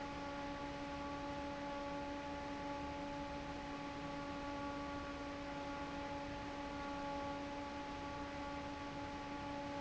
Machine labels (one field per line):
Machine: fan